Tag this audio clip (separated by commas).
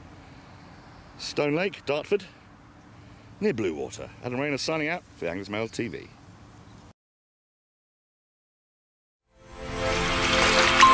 Music, Speech